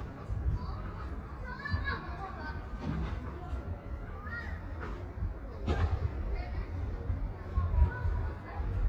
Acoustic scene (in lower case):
residential area